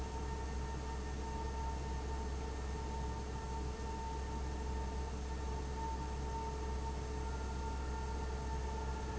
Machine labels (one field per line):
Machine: fan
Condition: abnormal